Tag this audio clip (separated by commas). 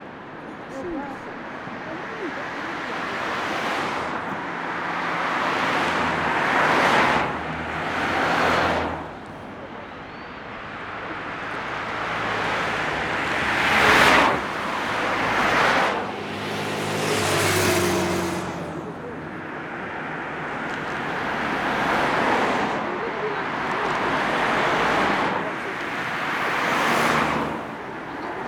Vehicle, Motor vehicle (road), Traffic noise